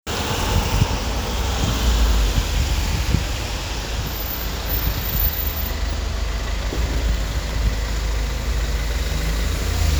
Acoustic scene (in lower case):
street